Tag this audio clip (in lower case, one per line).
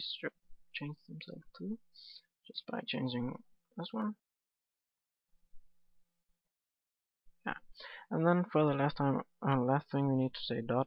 speech